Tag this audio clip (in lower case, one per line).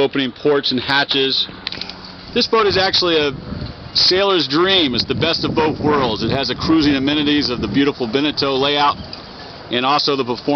speech